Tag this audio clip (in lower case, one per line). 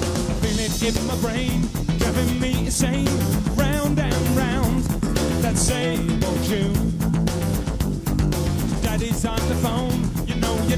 music